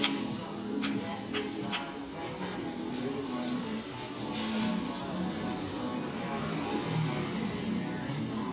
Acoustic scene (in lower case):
cafe